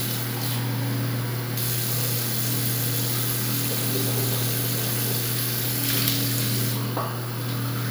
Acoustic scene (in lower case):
restroom